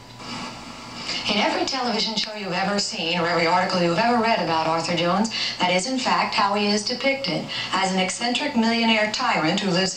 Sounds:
speech

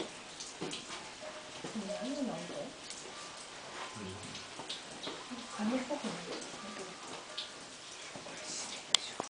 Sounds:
tap, speech

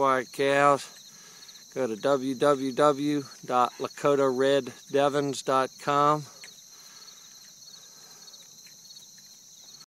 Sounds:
speech

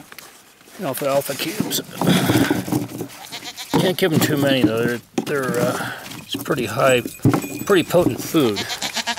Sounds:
goat, animal, speech

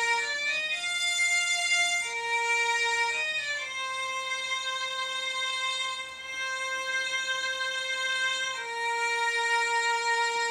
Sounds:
musical instrument, music

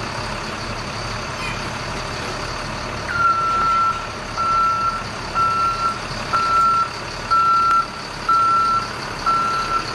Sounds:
vehicle

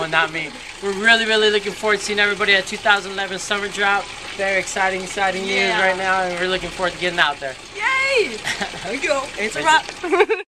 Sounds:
water, speech

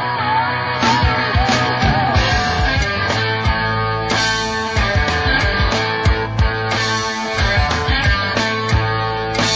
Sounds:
music

